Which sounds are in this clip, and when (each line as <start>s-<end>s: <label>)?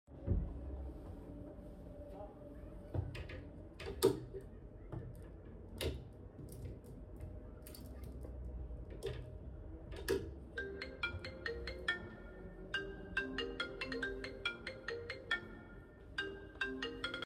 0.2s-0.6s: wardrobe or drawer
4.0s-4.3s: wardrobe or drawer
5.7s-5.9s: wardrobe or drawer
9.1s-9.3s: wardrobe or drawer
10.1s-10.3s: wardrobe or drawer
10.7s-17.3s: phone ringing